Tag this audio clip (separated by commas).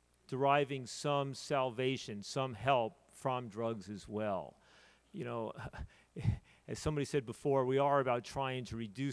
Speech